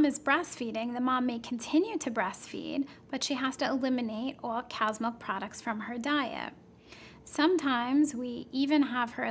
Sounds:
speech

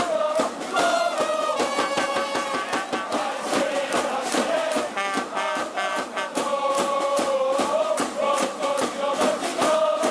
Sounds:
music

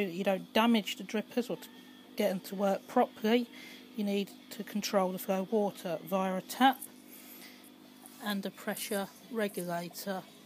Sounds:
speech

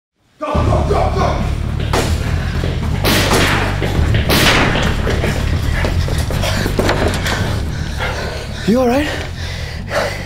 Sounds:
speech, music

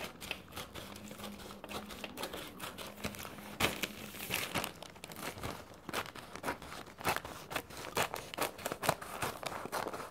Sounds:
ripping paper

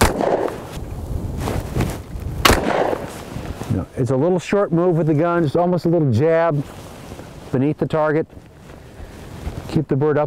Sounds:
speech

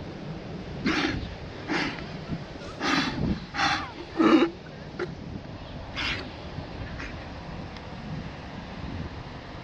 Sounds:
sea lion barking

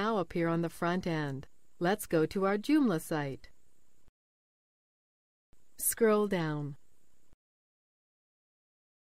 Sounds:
speech

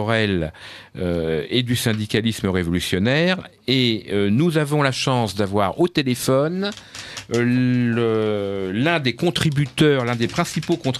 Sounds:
speech

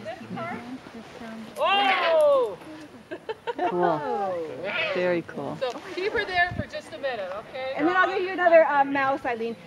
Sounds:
owl

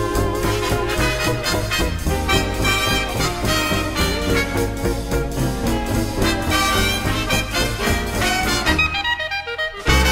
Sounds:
music, orchestra

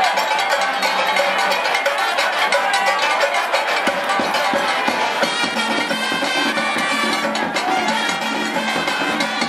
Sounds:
music, speech

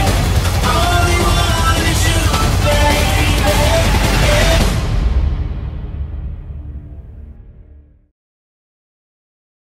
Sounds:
music, soundtrack music

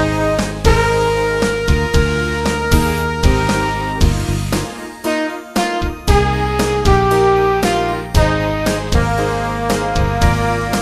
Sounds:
music

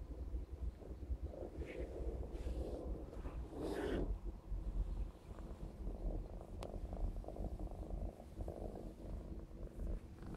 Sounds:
pets, cat, animal, purr

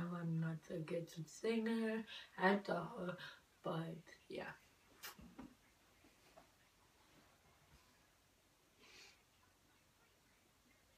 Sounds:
speech

